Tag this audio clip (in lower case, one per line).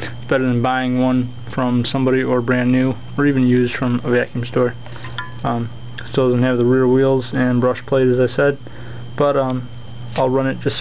speech